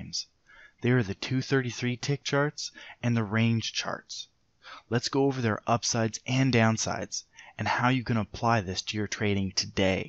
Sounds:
Speech

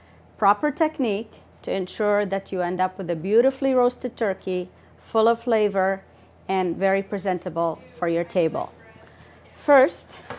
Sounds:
Speech

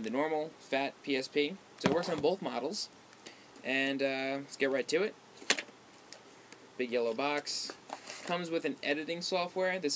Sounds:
Speech

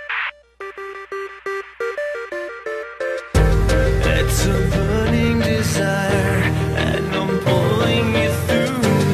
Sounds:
Music

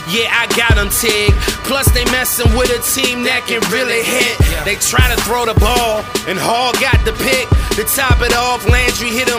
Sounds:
Music

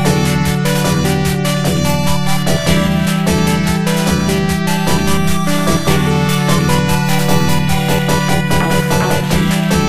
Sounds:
Video game music, Music

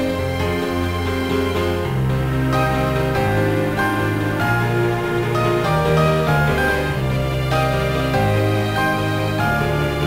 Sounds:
Theme music, Music

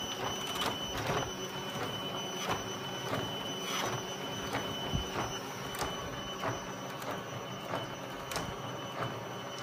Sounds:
printer printing, Printer

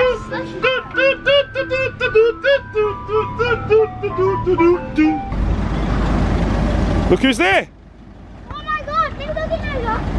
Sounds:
ice cream van

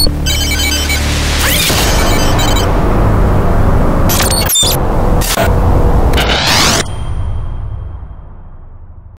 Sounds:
Radio

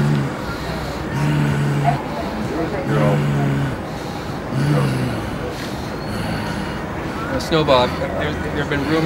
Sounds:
Speech

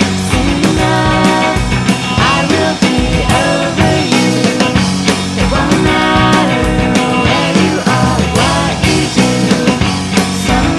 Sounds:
Music

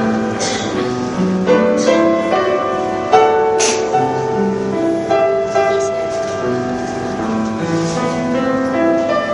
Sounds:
Music, Tender music

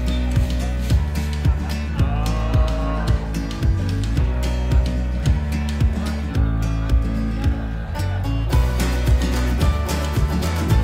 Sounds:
Music

